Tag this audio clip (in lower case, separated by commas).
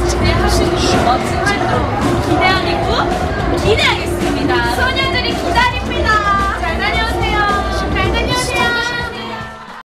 music, speech